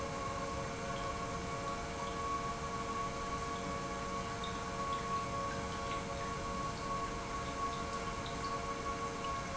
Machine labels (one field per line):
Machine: pump